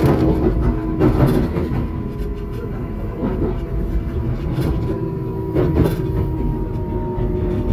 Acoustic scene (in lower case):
subway train